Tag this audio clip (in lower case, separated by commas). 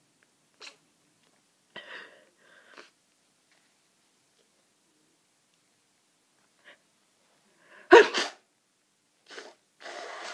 sneeze